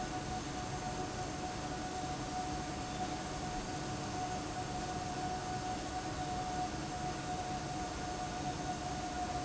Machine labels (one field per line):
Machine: fan